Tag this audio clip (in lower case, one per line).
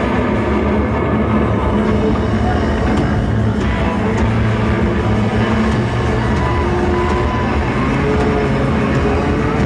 music